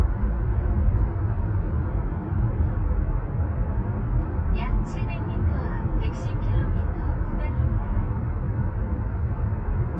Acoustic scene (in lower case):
car